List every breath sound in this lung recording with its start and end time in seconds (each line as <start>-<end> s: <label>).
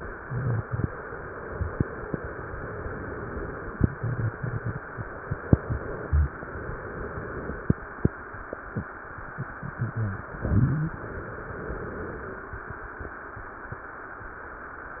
2.17-3.75 s: inhalation
6.04-7.62 s: inhalation
10.95-12.52 s: inhalation